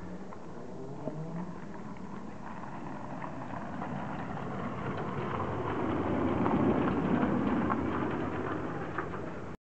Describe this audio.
Car engine, wheels turning in gravel